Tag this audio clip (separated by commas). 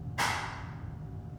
Clapping, Hands